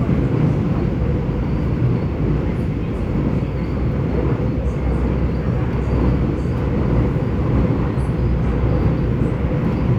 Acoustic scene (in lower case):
subway train